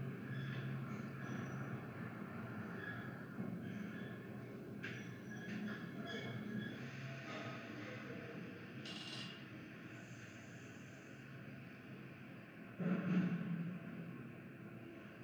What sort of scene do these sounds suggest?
elevator